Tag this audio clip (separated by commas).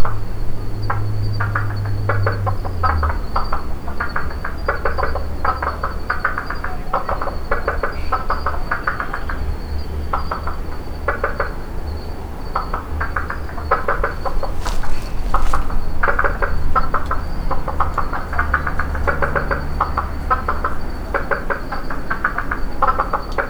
Animal, Frog, Wild animals